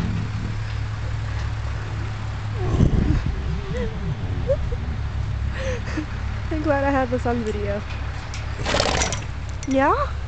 Laughter followed by animal grunting